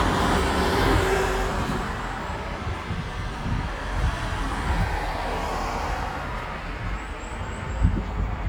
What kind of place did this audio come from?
street